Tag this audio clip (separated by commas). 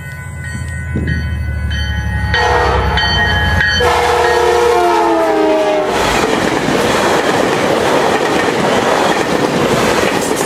train horning